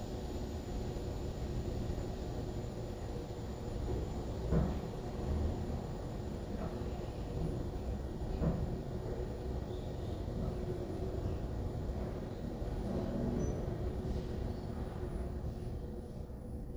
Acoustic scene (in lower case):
elevator